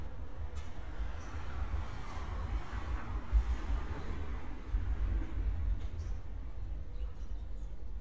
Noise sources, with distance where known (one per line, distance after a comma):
medium-sounding engine